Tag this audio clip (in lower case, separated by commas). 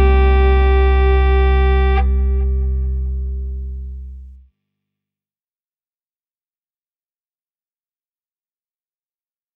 music, silence